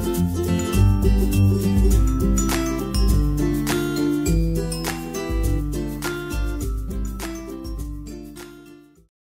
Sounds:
Music

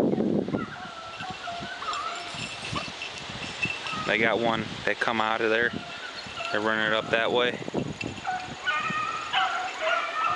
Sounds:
Animal, Speech, outside, rural or natural

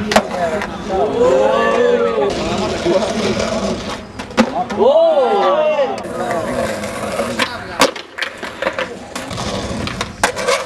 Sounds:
Crowd

